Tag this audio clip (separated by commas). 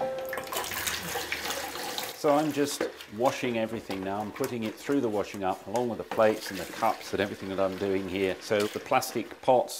Speech, inside a small room